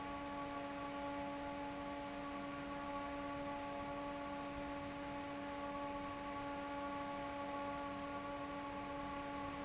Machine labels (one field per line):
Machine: fan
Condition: normal